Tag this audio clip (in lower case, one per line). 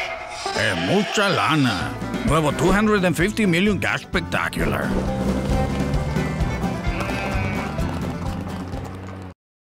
speech
music
sheep